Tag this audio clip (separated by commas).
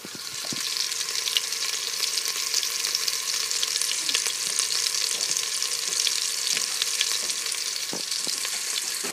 Frying (food), Domestic sounds